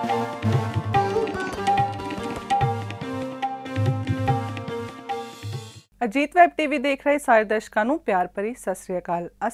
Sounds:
speech, sitar, music

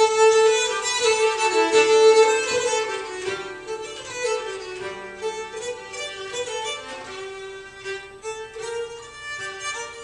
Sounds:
music, classical music, musical instrument, bowed string instrument

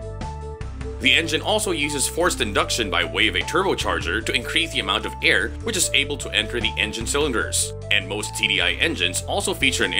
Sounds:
speech, electronic music, music

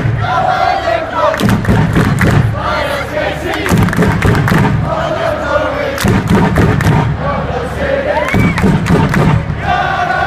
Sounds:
chant, outside, urban or man-made

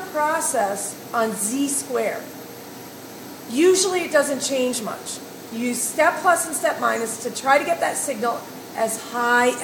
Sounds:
speech

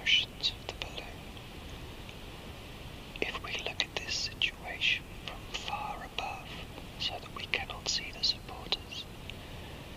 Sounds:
white noise, speech, whispering

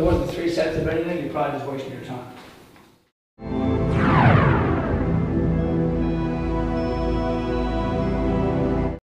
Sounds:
speech, music

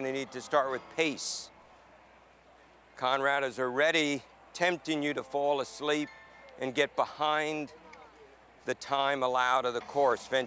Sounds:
speech

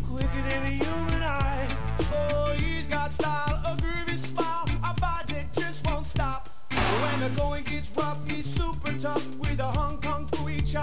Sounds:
music

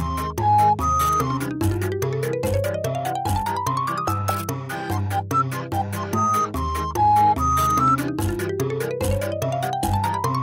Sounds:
music

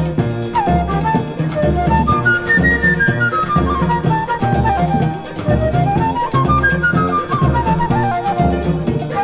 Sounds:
musical instrument, playing flute, flute, wind instrument, music

